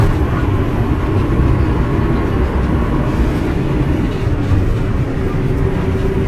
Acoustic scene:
bus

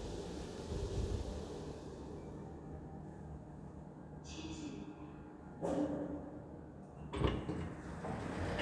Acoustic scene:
elevator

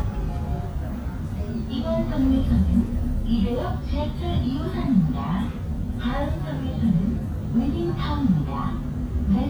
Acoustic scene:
bus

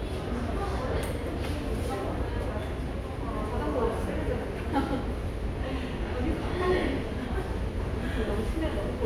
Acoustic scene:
subway station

